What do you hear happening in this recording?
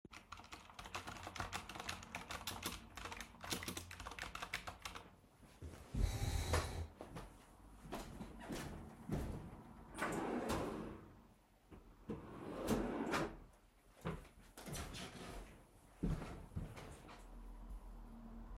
I was typing on keyboard, moved the chair to get up and walked to the kitchen counter. I opened and closed the drawer, then walked back to the table.